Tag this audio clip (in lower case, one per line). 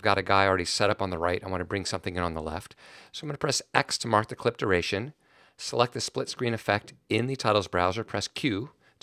speech